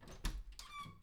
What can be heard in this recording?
wooden door opening